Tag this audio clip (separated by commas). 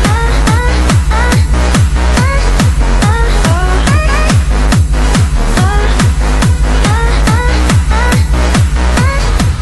Music